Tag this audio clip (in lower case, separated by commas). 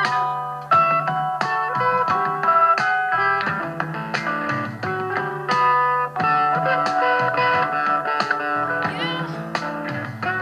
music